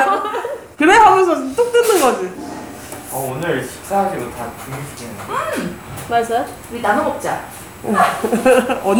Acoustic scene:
crowded indoor space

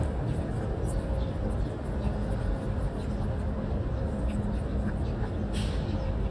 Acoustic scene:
residential area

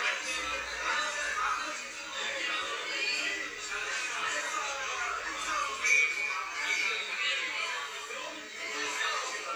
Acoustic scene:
crowded indoor space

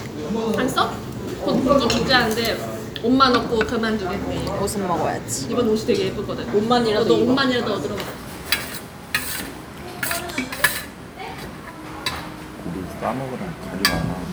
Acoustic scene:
restaurant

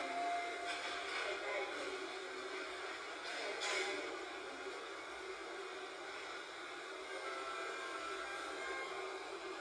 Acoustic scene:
subway train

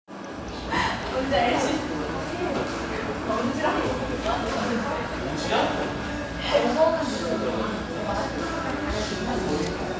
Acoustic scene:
cafe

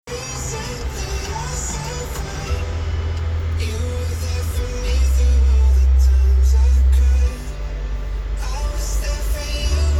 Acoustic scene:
car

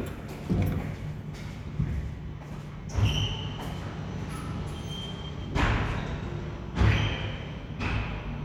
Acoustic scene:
elevator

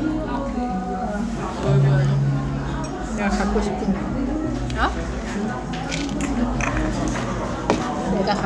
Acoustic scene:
crowded indoor space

